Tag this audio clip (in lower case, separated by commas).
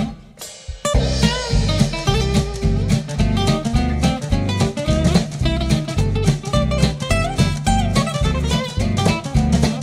musical instrument, music, bass drum, drum, drum kit